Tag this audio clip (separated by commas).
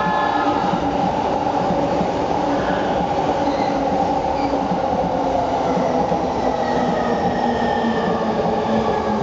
Train, Vehicle, outside, urban or man-made